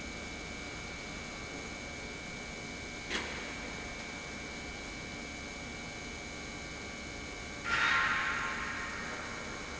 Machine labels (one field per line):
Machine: pump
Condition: normal